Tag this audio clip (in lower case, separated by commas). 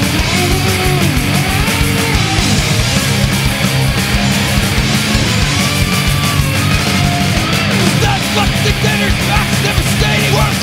punk rock, rock music, music